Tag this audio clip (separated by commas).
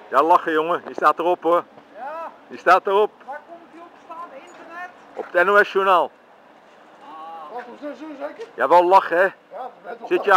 Speech